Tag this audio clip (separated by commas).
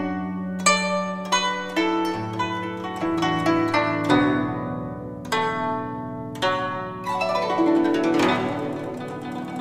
Traditional music, Music